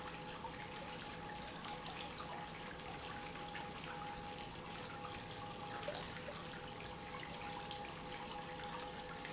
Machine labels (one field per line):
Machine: pump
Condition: normal